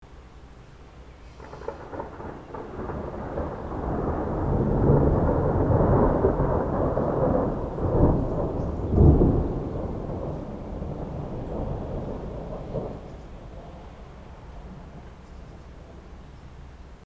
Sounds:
thunderstorm, thunder

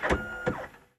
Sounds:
mechanisms, printer

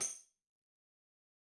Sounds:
musical instrument, tambourine, music, percussion

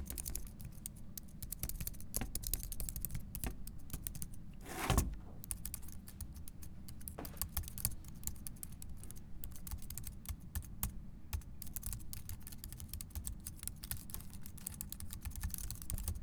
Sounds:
typing, domestic sounds

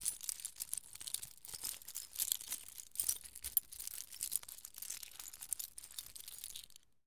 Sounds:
domestic sounds, keys jangling

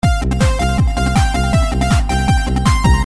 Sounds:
drum kit, percussion, music, musical instrument

